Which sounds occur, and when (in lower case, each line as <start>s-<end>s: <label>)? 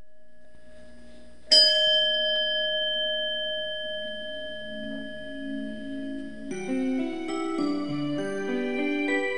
1.4s-6.5s: bell
4.6s-9.3s: music